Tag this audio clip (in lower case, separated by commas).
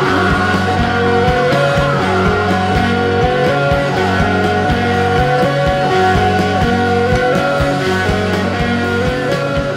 music, roll